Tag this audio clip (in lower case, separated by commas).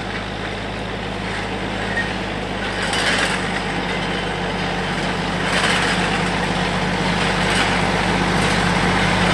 vehicle